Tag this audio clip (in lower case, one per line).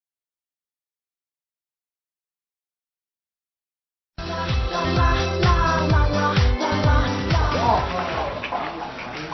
music
speech